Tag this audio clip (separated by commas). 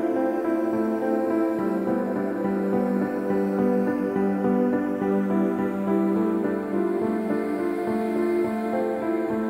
Music